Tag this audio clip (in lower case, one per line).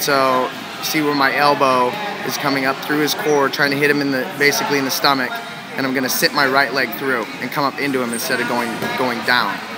speech